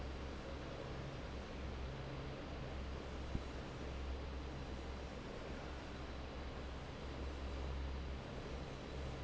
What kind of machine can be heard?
fan